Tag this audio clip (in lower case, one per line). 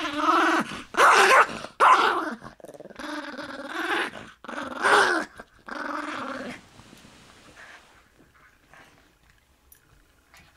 dog growling